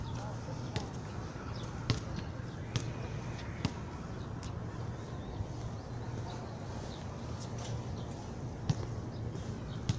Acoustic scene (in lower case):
park